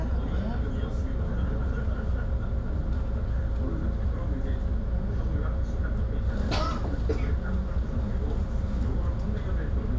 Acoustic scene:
bus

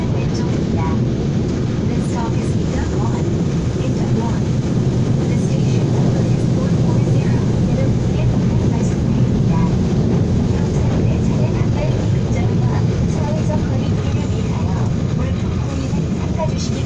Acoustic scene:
subway train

